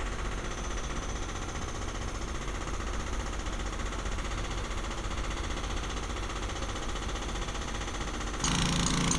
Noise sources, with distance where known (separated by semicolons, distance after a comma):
jackhammer, near